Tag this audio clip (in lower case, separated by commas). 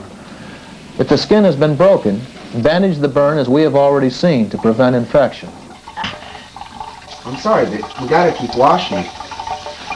speech